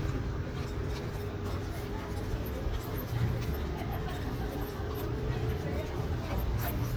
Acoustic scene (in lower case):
residential area